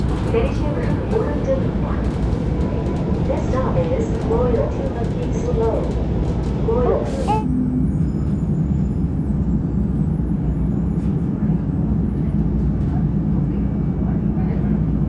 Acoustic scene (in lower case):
subway train